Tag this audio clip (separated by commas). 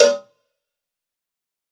Cowbell, Bell